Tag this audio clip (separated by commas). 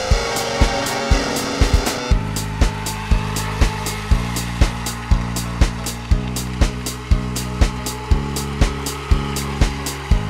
Water vehicle, Vehicle, Music